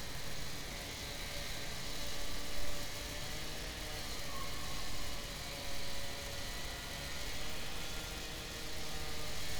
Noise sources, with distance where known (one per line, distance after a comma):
unidentified powered saw